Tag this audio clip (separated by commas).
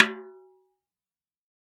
Percussion, Snare drum, Drum, Musical instrument, Music